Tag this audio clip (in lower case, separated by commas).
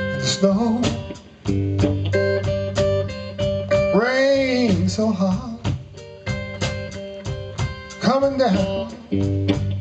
music